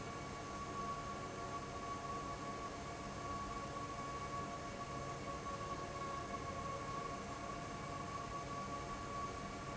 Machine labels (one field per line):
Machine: fan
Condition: abnormal